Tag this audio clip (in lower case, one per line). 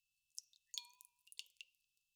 drip
liquid
rain
dribble
water
pour
raindrop